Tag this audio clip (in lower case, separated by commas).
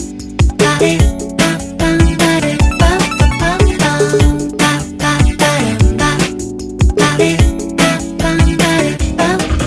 music